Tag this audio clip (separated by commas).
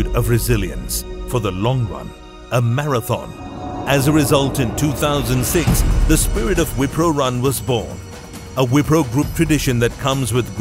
Music, Speech